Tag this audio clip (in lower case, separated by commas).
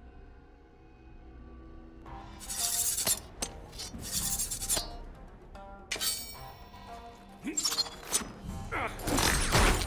music